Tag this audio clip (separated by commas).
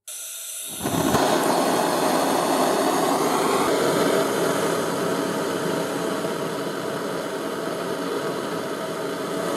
blowtorch igniting